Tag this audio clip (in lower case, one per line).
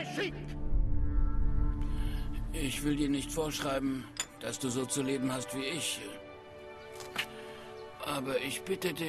music
speech